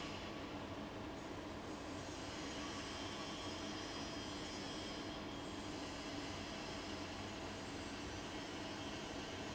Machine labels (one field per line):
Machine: fan